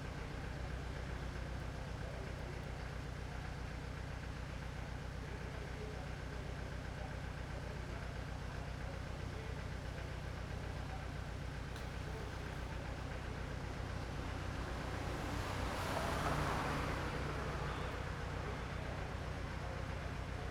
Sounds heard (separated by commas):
car, car wheels rolling, car engine idling